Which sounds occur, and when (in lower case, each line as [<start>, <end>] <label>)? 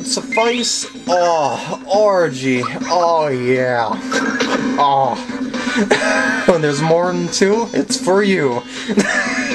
[0.00, 0.88] man speaking
[0.00, 9.54] video game sound
[0.30, 1.44] sound effect
[1.03, 1.75] human voice
[1.87, 2.75] man speaking
[2.56, 2.73] sound effect
[2.89, 4.03] man speaking
[4.09, 4.19] generic impact sounds
[4.12, 4.60] sound effect
[4.39, 4.55] generic impact sounds
[4.74, 5.15] human voice
[5.88, 6.58] giggle
[6.46, 8.61] man speaking
[8.62, 8.93] breathing
[8.93, 9.54] giggle